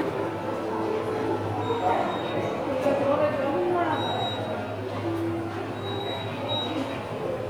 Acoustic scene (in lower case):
subway station